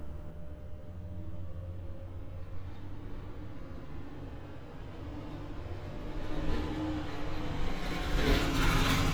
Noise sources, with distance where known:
medium-sounding engine

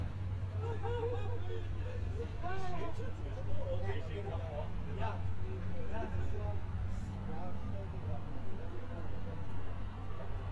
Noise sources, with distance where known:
person or small group talking

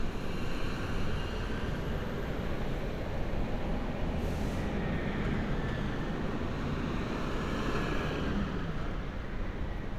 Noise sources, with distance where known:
medium-sounding engine, near

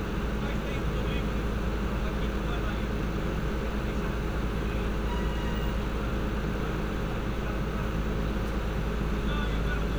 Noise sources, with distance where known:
medium-sounding engine
person or small group talking, near

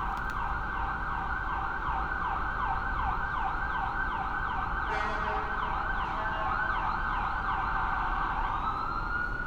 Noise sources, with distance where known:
car horn, far
siren, near

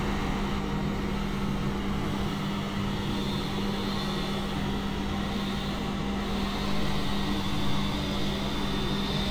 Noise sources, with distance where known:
large-sounding engine, near
chainsaw

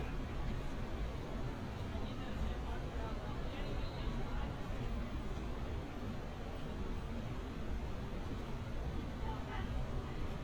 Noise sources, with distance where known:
person or small group talking, far

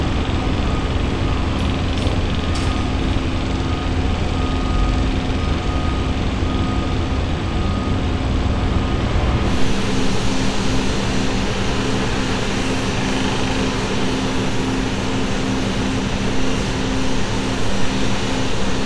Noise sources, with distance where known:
jackhammer

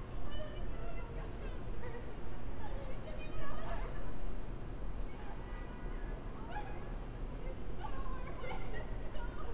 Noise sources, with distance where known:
person or small group talking, near

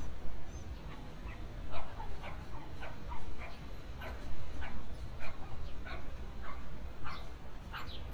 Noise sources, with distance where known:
dog barking or whining, far

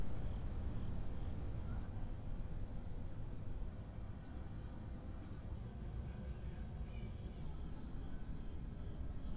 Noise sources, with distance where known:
unidentified human voice, far

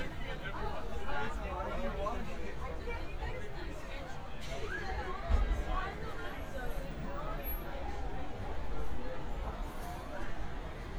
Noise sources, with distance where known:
person or small group talking, near

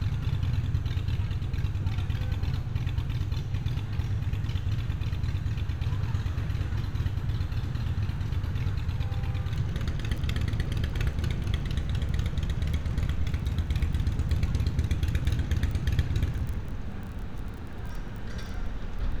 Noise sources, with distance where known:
medium-sounding engine, near

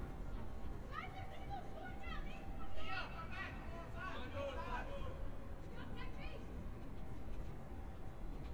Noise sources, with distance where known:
person or small group shouting

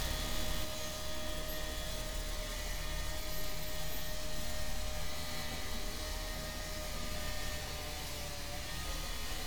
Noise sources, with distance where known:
unidentified powered saw

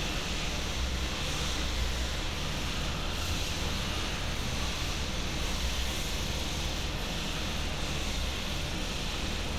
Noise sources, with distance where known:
unidentified impact machinery

